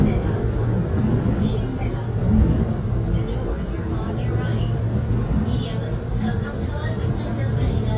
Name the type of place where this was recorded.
subway train